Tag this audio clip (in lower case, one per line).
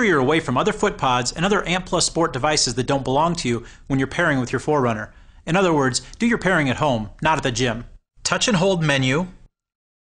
speech